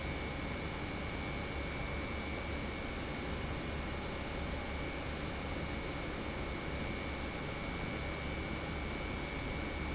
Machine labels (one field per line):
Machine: pump